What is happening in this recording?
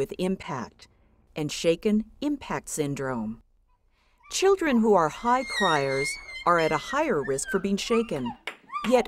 A woman is narrating over a child that is crying sharply